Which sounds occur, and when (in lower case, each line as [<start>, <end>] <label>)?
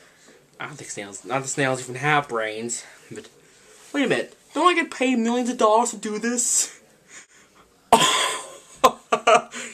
[0.00, 0.43] breathing
[0.00, 9.73] mechanisms
[0.57, 2.86] man speaking
[2.76, 3.06] breathing
[3.04, 3.24] generic impact sounds
[3.36, 3.94] breathing
[3.91, 4.30] man speaking
[4.48, 6.76] man speaking
[7.05, 7.75] breathing
[7.91, 9.73] laughter
[8.10, 8.74] breathing
[9.46, 9.73] breathing